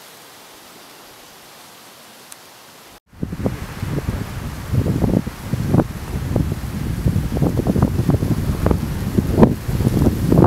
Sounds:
rustling leaves, wind rustling leaves

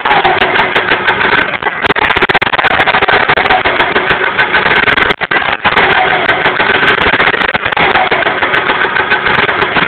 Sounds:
medium engine (mid frequency), idling, engine, accelerating

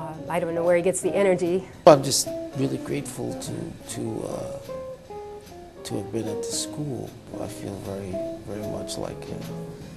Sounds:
plucked string instrument, speech, conversation, musical instrument, guitar, music

